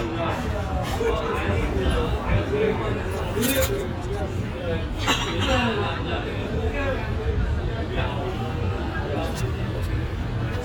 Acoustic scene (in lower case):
restaurant